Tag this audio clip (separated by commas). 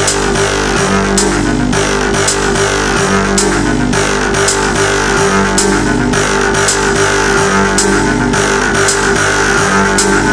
Music